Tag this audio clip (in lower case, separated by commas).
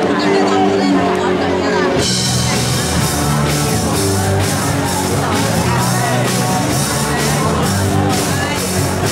music, speech